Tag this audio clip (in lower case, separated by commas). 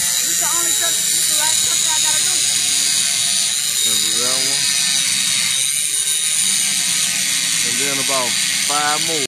speech